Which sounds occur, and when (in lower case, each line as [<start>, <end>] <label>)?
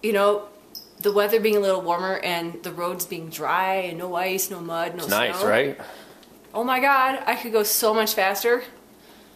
[0.00, 0.37] female speech
[0.00, 9.35] background noise
[0.88, 5.80] female speech
[4.96, 5.95] man speaking
[6.46, 8.58] female speech